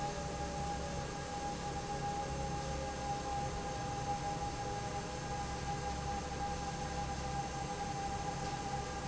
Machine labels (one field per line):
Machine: fan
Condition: normal